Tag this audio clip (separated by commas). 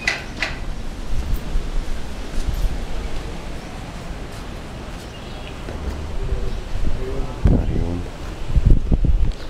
Walk, Speech